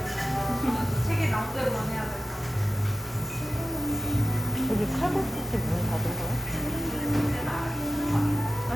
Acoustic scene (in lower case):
cafe